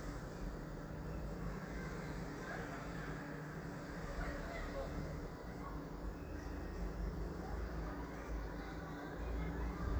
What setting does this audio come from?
residential area